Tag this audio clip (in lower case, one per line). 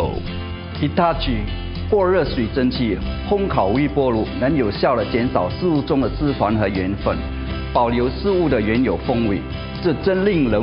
music
speech